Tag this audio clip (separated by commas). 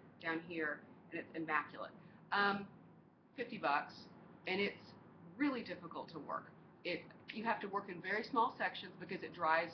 Speech